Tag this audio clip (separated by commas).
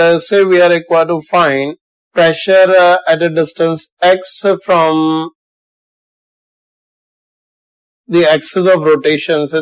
Speech